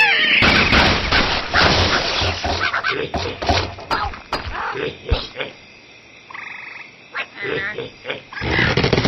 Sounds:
Speech

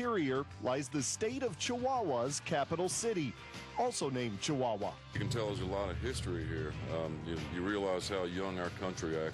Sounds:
Country, Music, Speech

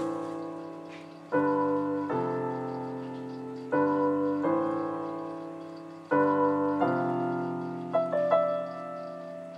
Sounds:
Music

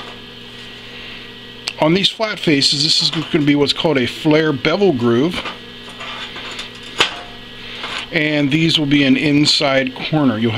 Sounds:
arc welding

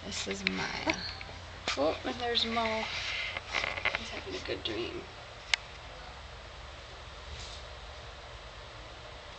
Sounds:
Speech

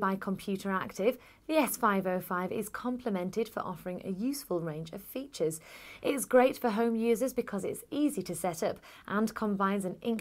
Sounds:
Speech

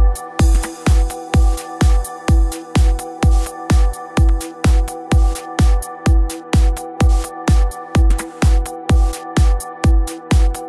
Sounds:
Music

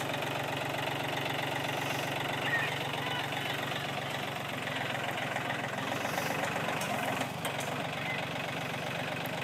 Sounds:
Speech

